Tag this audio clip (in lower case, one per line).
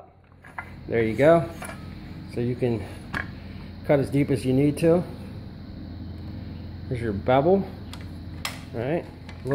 speech
tools